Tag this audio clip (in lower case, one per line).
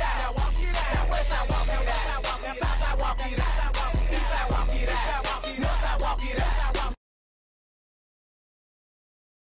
music